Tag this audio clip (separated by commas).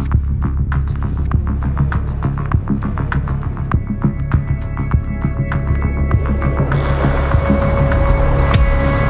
Music